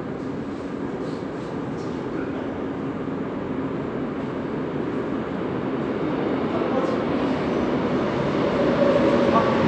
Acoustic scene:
subway station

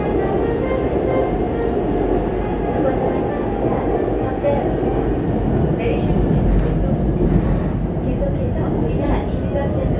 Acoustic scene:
subway train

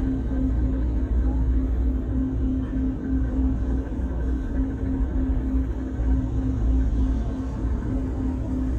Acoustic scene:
bus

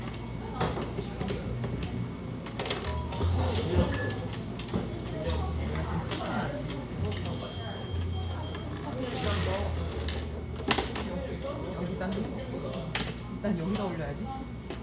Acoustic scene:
cafe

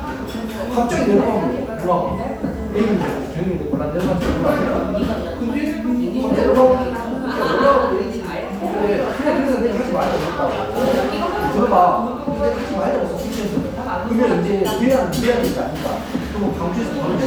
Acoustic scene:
cafe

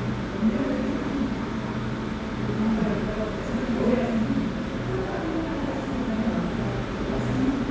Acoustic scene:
cafe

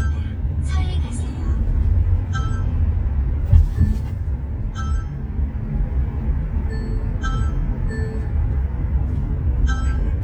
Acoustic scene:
car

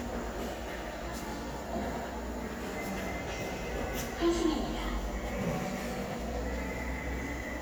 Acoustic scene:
subway station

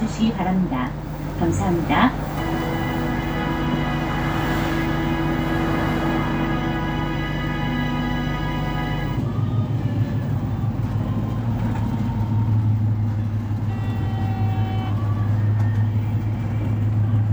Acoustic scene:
bus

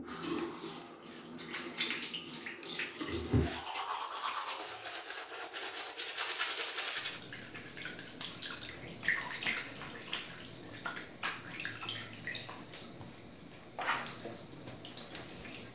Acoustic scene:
restroom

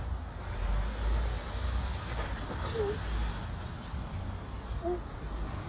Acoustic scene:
street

